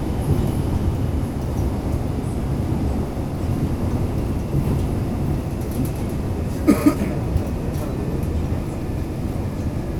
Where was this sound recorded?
in a subway station